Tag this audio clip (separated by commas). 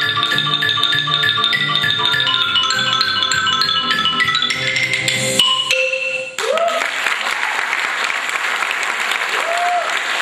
Mallet percussion, Glockenspiel, Marimba